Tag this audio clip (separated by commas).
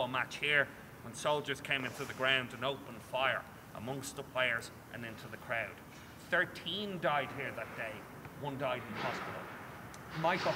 Speech